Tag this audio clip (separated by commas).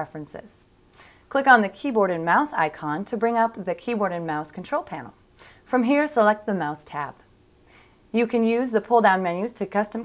Speech